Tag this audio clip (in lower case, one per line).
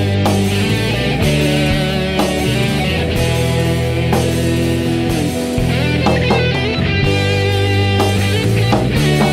tender music
theme music
funk
music